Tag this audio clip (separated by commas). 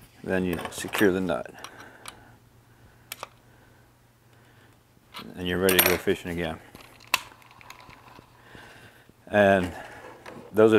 Speech